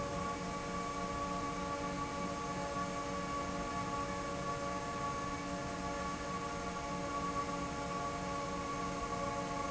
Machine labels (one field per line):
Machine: fan